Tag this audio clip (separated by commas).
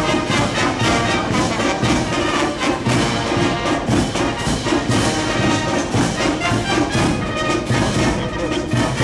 Music, Speech